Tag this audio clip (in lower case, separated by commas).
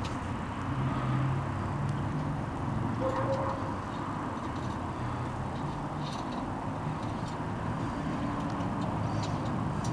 truck, vehicle